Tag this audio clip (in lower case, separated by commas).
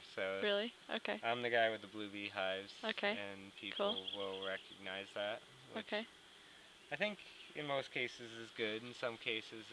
speech